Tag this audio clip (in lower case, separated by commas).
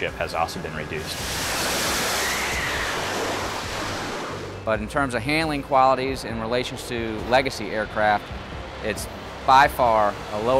airplane, aircraft, vehicle, speech, music